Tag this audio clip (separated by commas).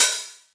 Musical instrument, Percussion, Hi-hat, Music, Cymbal